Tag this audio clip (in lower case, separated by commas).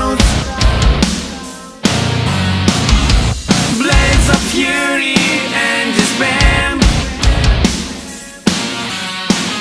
heavy metal, music, rock and roll